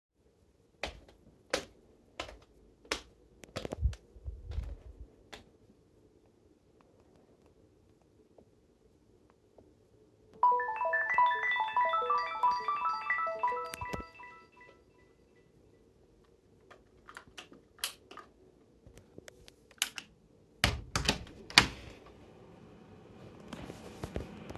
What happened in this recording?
I walked around, then my phone rang, i turned on both my lights, then i opened my door.